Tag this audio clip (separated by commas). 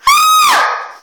Screaming, Human voice